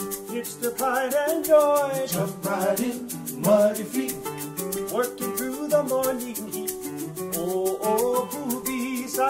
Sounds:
Musical instrument, Guitar, Acoustic guitar, Strum, Music, Plucked string instrument

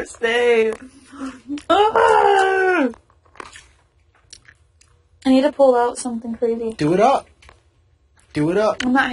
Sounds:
Chewing

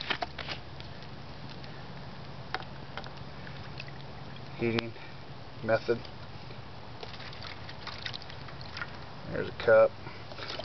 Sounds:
Water, Speech, outside, rural or natural

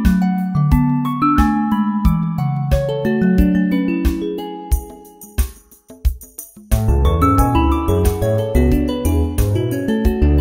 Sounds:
Music

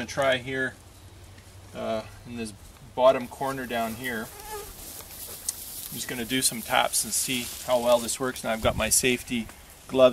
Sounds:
Speech

